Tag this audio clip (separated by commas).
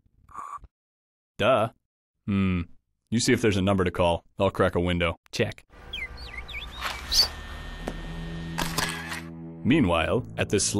Animal, Music, Speech